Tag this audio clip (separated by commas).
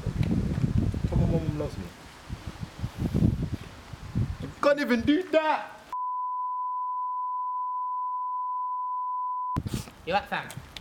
outside, rural or natural, Speech